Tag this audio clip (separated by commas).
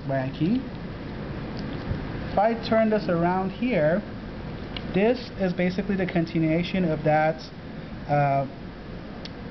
Speech